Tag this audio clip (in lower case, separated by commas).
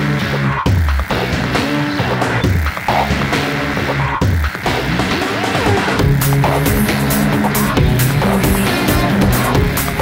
music